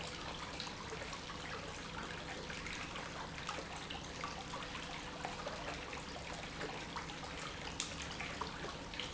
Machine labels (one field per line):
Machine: pump